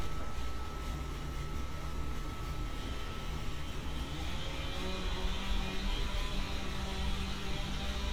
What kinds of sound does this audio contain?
small or medium rotating saw